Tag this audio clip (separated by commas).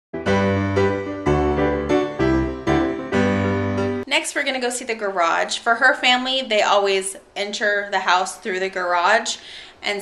Speech, Music